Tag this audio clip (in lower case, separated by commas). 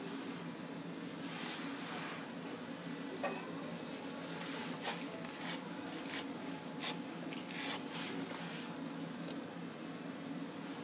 inside a small room